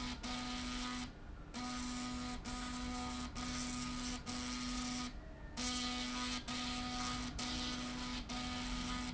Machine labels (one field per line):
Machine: slide rail